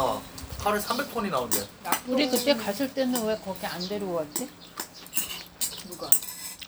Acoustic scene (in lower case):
restaurant